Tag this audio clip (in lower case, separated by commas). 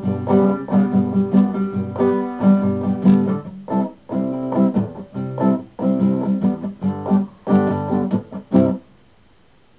acoustic guitar, inside a small room, guitar, plucked string instrument, music, musical instrument